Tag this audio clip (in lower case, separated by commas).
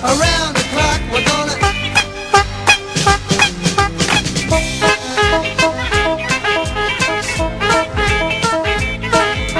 music